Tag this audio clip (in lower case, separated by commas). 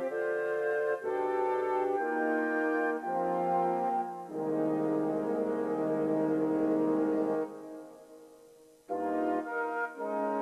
harmonic, music